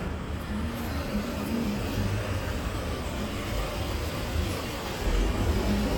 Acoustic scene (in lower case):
street